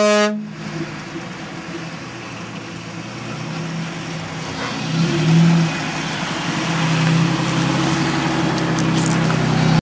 A horn sounds and an engine revs